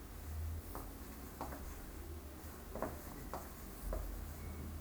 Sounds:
walk

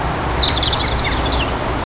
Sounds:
chirp, bird song, bird, wild animals, animal

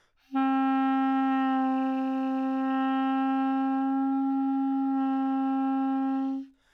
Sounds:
woodwind instrument, musical instrument, music

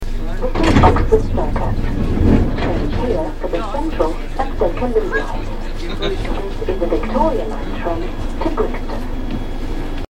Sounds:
vehicle, underground, rail transport

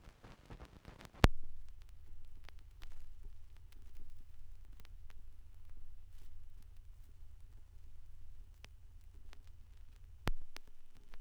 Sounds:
crackle

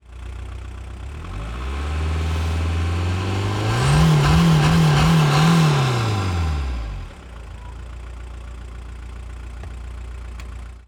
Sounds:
engine, vehicle, car, idling, car passing by, motor vehicle (road)

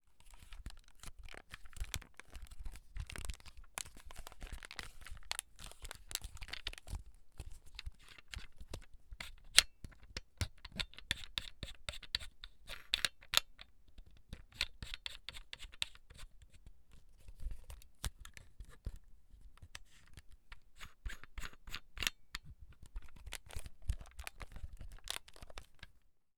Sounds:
camera, mechanisms

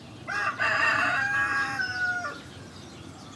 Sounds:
chicken, fowl, animal, livestock

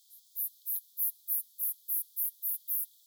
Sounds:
insect, animal, wild animals

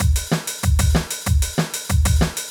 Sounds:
musical instrument, music, drum kit, percussion

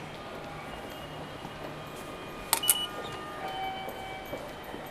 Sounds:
rail transport, subway, vehicle, footsteps

